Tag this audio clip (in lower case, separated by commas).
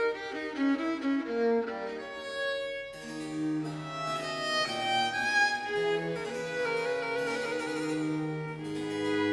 bowed string instrument, violin, music